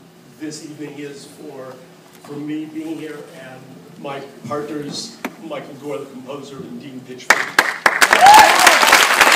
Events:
0.0s-9.3s: background noise
0.4s-1.8s: male speech
2.2s-3.6s: male speech
3.9s-4.3s: male speech
4.4s-5.2s: male speech
5.4s-7.2s: male speech
7.3s-7.4s: clapping
7.5s-7.7s: clapping
7.8s-9.3s: clapping

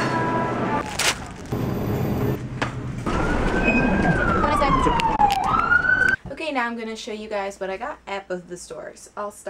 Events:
0.0s-9.4s: mechanisms
0.9s-1.2s: crumpling
2.5s-2.8s: generic impact sounds
3.0s-6.1s: siren
3.6s-3.9s: generic impact sounds
4.4s-5.0s: female speech
4.9s-5.6s: generic impact sounds
5.9s-6.1s: generic impact sounds
6.2s-9.4s: female speech

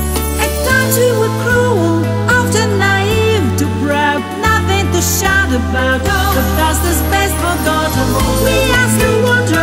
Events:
0.0s-9.6s: music
0.6s-1.9s: female singing
2.3s-9.6s: female singing

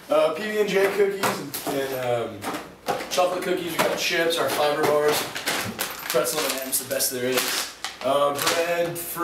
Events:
0.0s-9.2s: background noise
0.1s-1.5s: man speaking
0.8s-1.0s: generic impact sounds
1.2s-1.7s: generic impact sounds
1.6s-2.3s: man speaking
2.0s-2.1s: generic impact sounds
2.4s-2.6s: generic impact sounds
2.8s-3.1s: generic impact sounds
3.1s-5.2s: man speaking
3.7s-4.0s: generic impact sounds
4.4s-4.9s: generic impact sounds
5.1s-5.7s: generic impact sounds
5.8s-7.7s: generic impact sounds
6.1s-7.4s: man speaking
7.8s-8.0s: tick
8.0s-9.0s: man speaking
8.3s-8.9s: generic impact sounds
9.2s-9.2s: man speaking

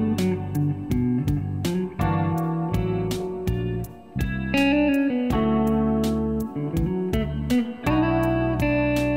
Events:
0.0s-9.1s: music

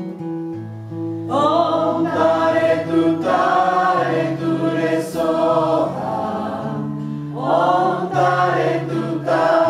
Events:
0.0s-9.6s: background noise
0.0s-9.6s: music
1.3s-6.8s: mantra
7.0s-7.3s: breathing
7.4s-9.6s: mantra

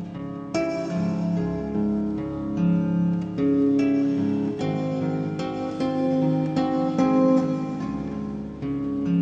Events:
0.0s-9.2s: music

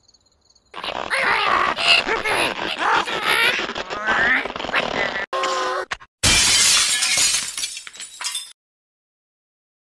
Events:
0.0s-0.7s: background noise
0.0s-0.7s: cricket
0.7s-5.2s: surface contact
5.3s-6.1s: sound effect
5.3s-6.0s: human voice
6.2s-8.5s: shatter

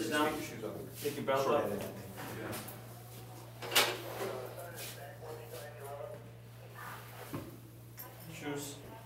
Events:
0.0s-0.8s: man speaking
0.0s-9.0s: conversation
0.0s-9.0s: mechanisms
0.9s-1.2s: surface contact
0.9s-1.9s: man speaking
1.7s-2.7s: walk
2.2s-2.6s: man speaking
3.1s-3.5s: walk
3.5s-4.4s: generic impact sounds
4.1s-6.2s: man speaking
4.7s-5.0s: surface contact
5.5s-6.2s: walk
6.7s-7.4s: surface contact
7.2s-7.5s: generic impact sounds
8.0s-9.0s: female speech
8.3s-8.8s: man speaking

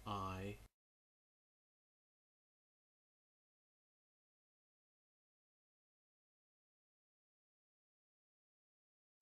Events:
0.0s-0.6s: man speaking

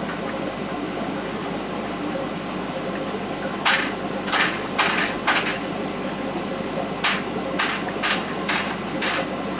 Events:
0.0s-9.5s: mechanisms
0.1s-0.4s: generic impact sounds
1.7s-1.8s: generic impact sounds
2.2s-2.4s: generic impact sounds
2.9s-3.0s: tick
3.6s-4.0s: generic impact sounds
4.3s-4.6s: generic impact sounds
4.8s-5.1s: generic impact sounds
5.3s-5.6s: generic impact sounds
6.3s-6.5s: tick
7.1s-7.3s: generic impact sounds
7.6s-7.8s: generic impact sounds
7.9s-8.0s: tick
8.0s-8.3s: generic impact sounds
8.5s-8.8s: generic impact sounds
9.0s-9.3s: generic impact sounds

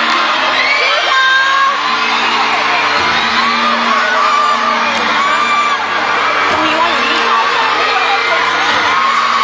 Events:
0.0s-9.4s: crowd
0.0s-9.4s: music
5.2s-5.8s: shout
6.4s-6.6s: thud
6.5s-7.2s: female speech

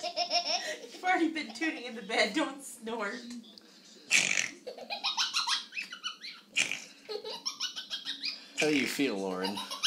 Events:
1.0s-9.6s: conversation
2.8s-3.3s: female speech
6.5s-6.9s: human sounds
8.6s-9.6s: man speaking
9.4s-9.8s: giggle

